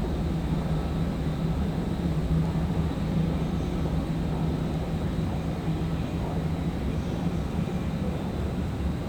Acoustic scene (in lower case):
subway station